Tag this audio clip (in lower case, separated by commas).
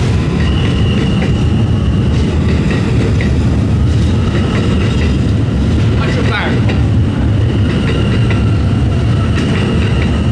vehicle, underground, rail transport, speech, railroad car, train